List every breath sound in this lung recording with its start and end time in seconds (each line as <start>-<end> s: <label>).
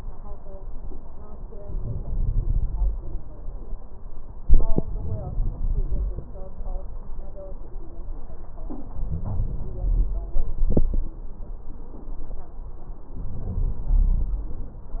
1.59-2.98 s: inhalation
1.59-2.98 s: crackles
4.85-6.28 s: inhalation
8.91-10.18 s: inhalation
13.15-14.42 s: inhalation